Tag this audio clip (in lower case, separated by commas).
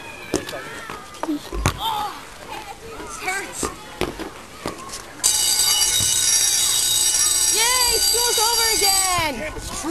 speech